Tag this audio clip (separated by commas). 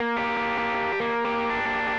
Plucked string instrument, Music, Guitar, Musical instrument